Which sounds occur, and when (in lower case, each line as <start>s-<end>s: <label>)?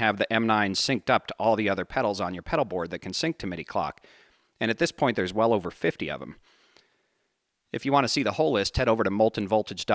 0.0s-3.9s: male speech
0.0s-9.9s: background noise
3.9s-4.6s: breathing
4.6s-6.4s: male speech
6.4s-7.5s: breathing
7.7s-9.9s: male speech